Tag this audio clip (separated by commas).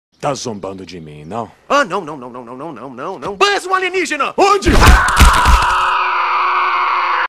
thud, Speech